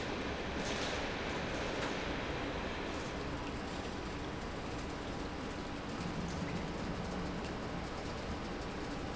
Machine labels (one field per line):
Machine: pump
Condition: normal